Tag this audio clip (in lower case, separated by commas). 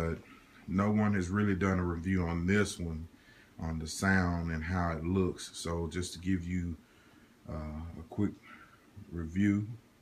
speech